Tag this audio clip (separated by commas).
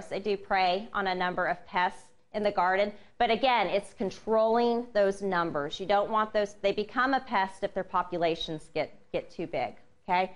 Speech